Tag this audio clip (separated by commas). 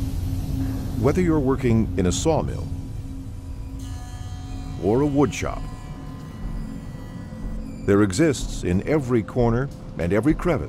Speech